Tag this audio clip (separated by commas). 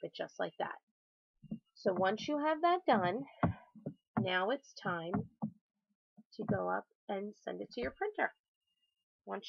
Speech